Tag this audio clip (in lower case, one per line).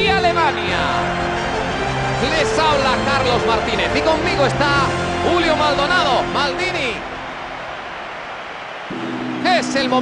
speech
music